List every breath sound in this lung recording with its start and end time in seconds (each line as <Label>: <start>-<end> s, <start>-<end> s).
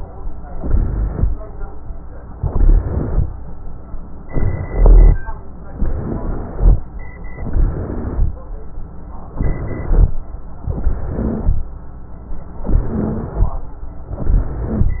Inhalation: 0.49-1.25 s, 2.33-3.28 s, 4.29-5.16 s, 5.79-6.77 s, 7.33-8.31 s, 9.36-10.11 s, 10.68-11.61 s, 12.68-13.60 s, 14.25-15.00 s
Rhonchi: 0.49-1.25 s, 2.33-3.28 s, 4.29-5.16 s, 5.79-6.77 s, 7.33-8.31 s, 9.36-10.11 s, 10.68-11.61 s, 12.68-13.60 s, 14.25-15.00 s